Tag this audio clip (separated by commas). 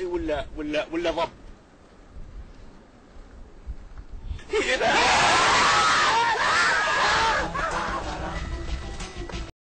Music, Speech